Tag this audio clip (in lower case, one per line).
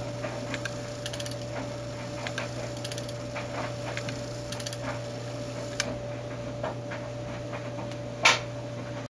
tick-tock